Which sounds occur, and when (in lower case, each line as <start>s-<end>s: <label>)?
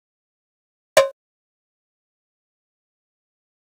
0.9s-1.1s: tap